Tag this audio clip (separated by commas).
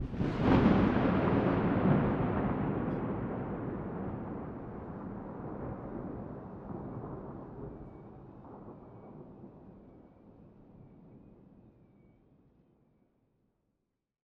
Thunderstorm, Thunder